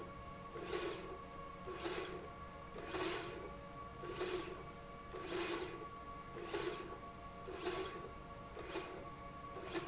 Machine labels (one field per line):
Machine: slide rail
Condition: normal